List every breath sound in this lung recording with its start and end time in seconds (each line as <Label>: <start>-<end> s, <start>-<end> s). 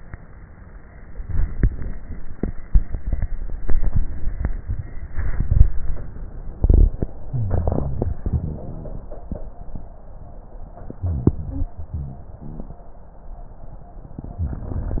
Inhalation: 7.29-8.16 s, 11.02-11.73 s
Exhalation: 8.23-9.11 s, 11.78-12.26 s
Wheeze: 7.29-8.16 s, 8.23-8.69 s, 11.02-11.73 s, 11.78-12.26 s
Rhonchi: 12.39-12.83 s, 14.40-15.00 s